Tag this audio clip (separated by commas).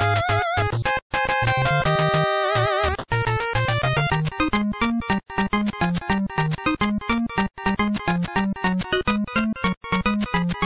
Music